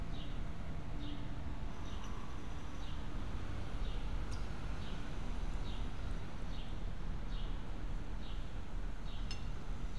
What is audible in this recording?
background noise